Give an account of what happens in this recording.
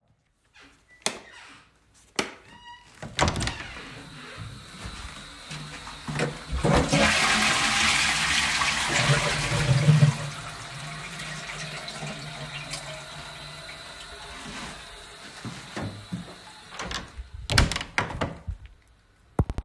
I turned on the light in the toilet and opened the door. After placing some hygiene items inside, I flushed the toilet. The flushing sound continued for a short time before I closed the door and then colsed the door.